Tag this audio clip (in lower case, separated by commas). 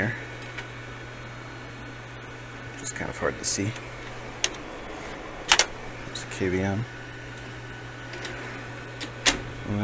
speech, inside a small room